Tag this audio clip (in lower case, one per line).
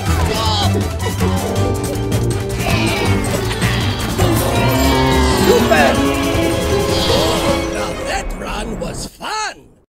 speech
music